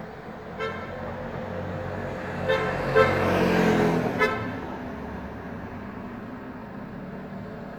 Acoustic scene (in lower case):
residential area